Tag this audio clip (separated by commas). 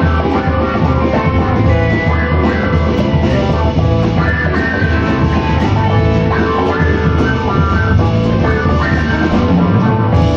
Drum kit, Music, playing drum kit, Jazz, Guitar